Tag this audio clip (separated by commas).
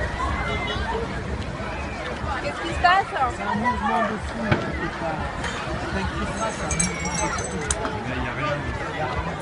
Speech